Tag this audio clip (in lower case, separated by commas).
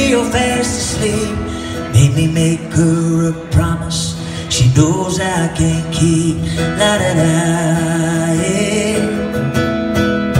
musical instrument, guitar, plucked string instrument, strum, acoustic guitar, music